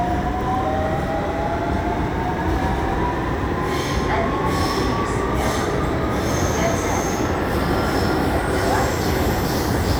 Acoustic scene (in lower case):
subway train